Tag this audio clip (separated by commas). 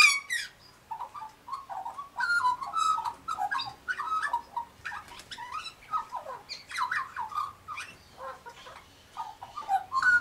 magpie calling